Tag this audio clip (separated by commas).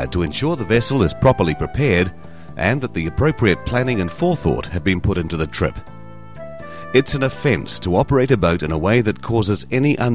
Music, Speech